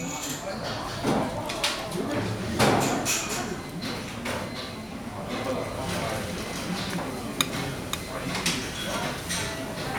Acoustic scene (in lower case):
restaurant